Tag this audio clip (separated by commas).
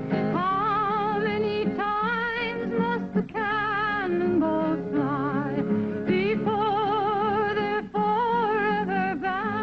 Music